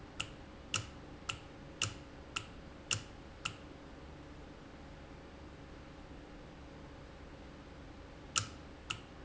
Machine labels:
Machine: valve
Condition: normal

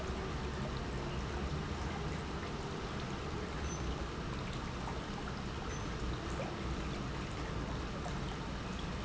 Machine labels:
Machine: pump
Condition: normal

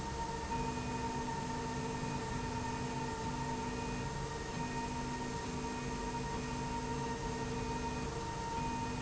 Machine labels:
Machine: slide rail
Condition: normal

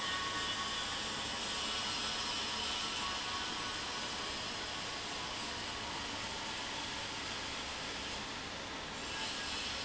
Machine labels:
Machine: fan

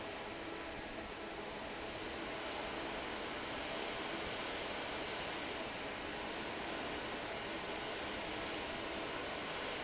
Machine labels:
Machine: fan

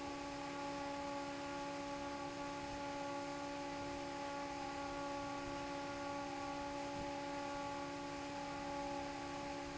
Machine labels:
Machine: fan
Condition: normal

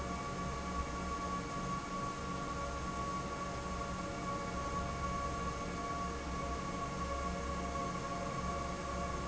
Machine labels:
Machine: fan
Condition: normal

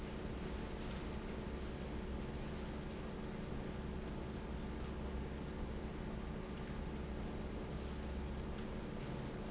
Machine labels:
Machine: fan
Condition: normal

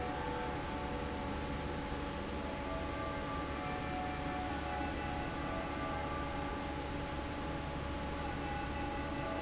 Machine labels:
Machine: fan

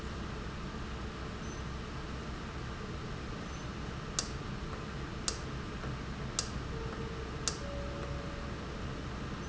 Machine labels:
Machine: valve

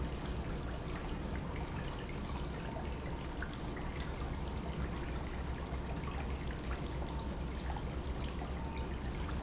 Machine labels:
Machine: pump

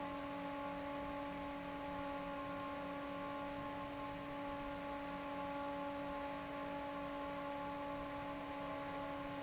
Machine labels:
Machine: fan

